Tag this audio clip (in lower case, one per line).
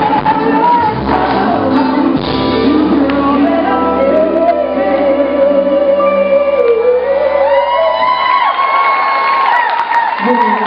singing
pop music
music